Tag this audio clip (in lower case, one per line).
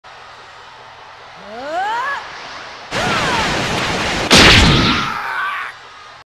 music